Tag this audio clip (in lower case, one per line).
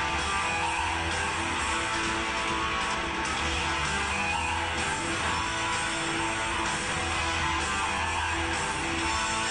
musical instrument
music
strum
plucked string instrument
bass guitar
guitar